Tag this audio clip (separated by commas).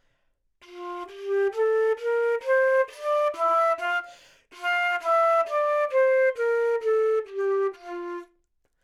Music, Musical instrument, Wind instrument